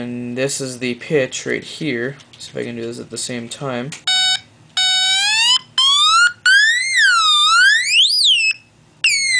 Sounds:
speech

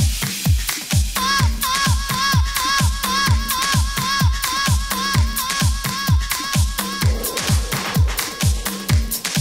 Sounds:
disco, music

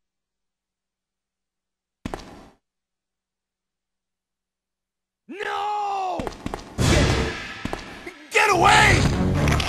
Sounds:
speech, thud, music

